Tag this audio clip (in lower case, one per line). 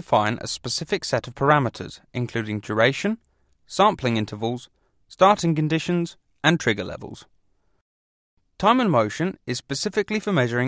speech synthesizer